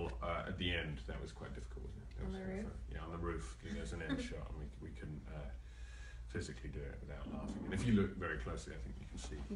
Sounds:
speech

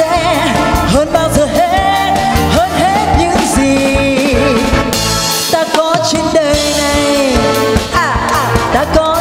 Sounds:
singing
music

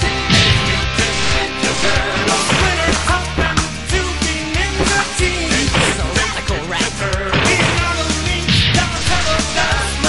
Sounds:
music

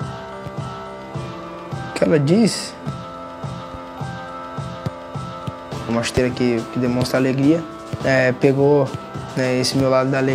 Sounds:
speech
music

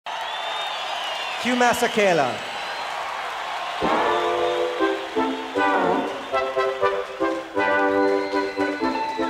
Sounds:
outside, urban or man-made
speech
music

